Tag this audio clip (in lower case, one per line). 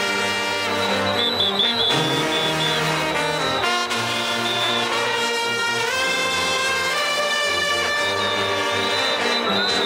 music